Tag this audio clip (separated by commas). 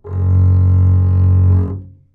Bowed string instrument, Music, Musical instrument